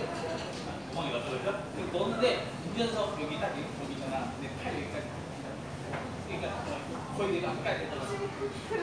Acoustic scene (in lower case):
crowded indoor space